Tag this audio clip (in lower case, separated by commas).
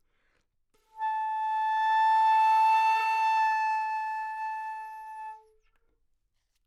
music, musical instrument, wind instrument